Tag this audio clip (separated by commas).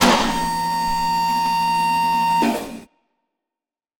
Mechanisms